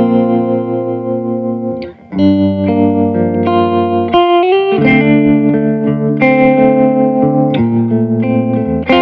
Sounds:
music, musical instrument, distortion, plucked string instrument, guitar

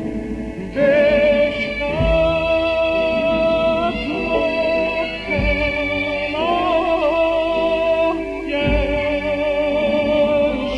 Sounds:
music

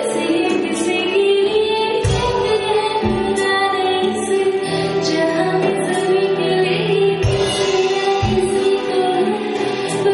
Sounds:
female singing, music

